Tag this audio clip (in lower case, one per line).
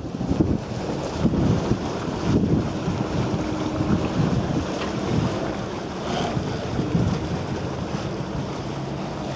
sailing ship
vehicle
sailing
water vehicle